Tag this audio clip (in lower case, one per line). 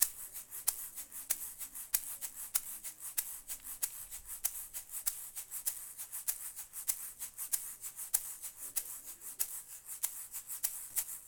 rattle (instrument)
percussion
music
musical instrument